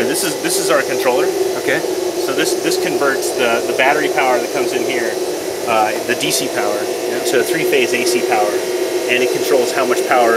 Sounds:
speech

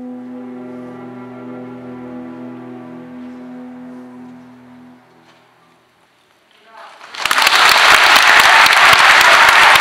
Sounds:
music
musical instrument
applause

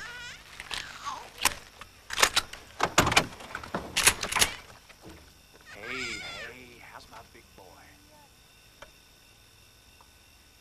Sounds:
speech
inside a small room

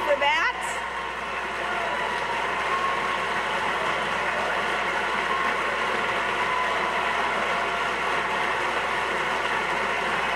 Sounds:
woman speaking
speech

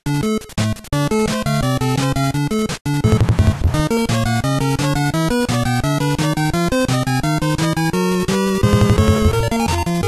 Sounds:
music

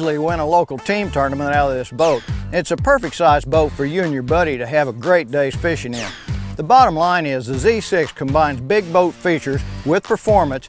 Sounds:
speech
music

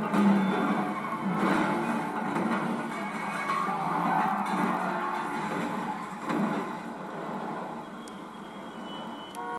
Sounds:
crash

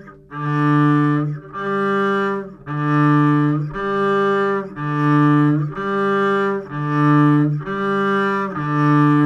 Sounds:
playing double bass

